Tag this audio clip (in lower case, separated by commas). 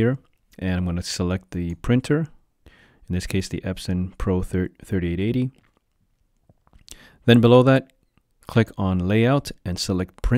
speech